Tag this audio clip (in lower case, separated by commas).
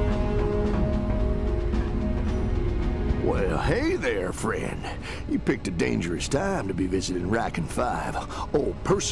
speech